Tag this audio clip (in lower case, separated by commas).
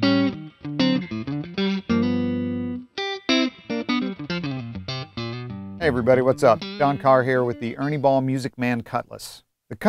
musical instrument, music, guitar, strum, speech, plucked string instrument, electric guitar